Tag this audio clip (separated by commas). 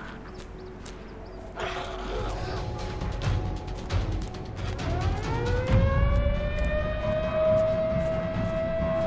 Music, Animal